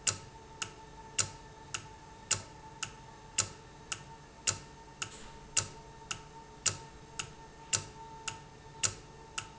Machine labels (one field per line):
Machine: valve